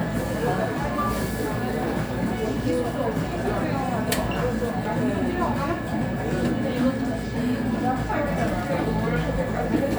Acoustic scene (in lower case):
cafe